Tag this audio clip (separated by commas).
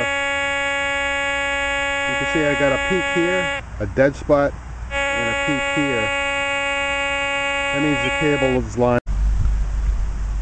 outside, urban or man-made, Speech